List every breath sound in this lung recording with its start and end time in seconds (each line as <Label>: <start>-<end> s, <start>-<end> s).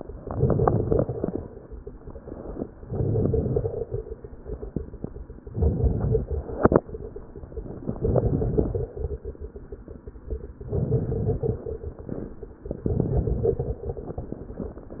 Inhalation: 0.15-1.46 s, 2.81-4.00 s, 5.50-6.36 s, 8.08-8.94 s, 10.62-11.67 s, 12.83-13.87 s
Crackles: 0.15-1.46 s, 2.81-4.00 s, 5.50-6.36 s, 8.08-8.94 s, 10.62-11.67 s, 12.83-13.87 s